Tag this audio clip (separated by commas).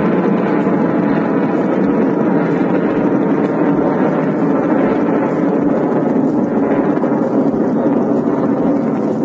missile launch